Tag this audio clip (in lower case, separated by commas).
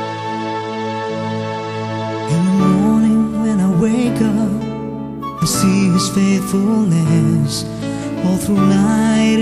tender music, music